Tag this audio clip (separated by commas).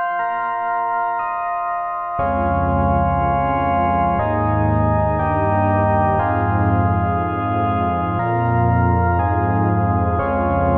Music, Tender music, Electronic music